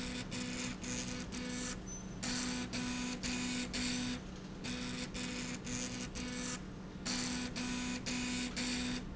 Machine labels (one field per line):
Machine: slide rail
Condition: abnormal